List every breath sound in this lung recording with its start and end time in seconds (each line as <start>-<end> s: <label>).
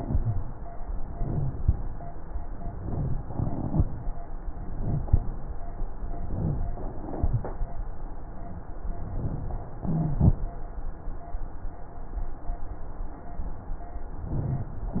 0.02-0.49 s: wheeze
1.10-1.61 s: inhalation
1.12-1.60 s: wheeze
2.62-3.23 s: inhalation
2.90-3.19 s: rhonchi
3.27-3.87 s: exhalation
4.57-5.05 s: inhalation
4.82-5.07 s: rhonchi
5.05-5.46 s: exhalation
6.20-6.78 s: inhalation
6.37-6.64 s: rhonchi
7.11-7.59 s: exhalation
7.11-7.59 s: rhonchi
9.05-9.62 s: inhalation
9.81-10.38 s: exhalation
9.83-10.30 s: wheeze
14.25-14.82 s: inhalation
14.25-14.82 s: rhonchi